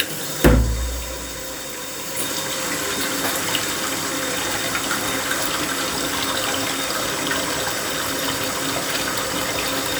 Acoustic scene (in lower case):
restroom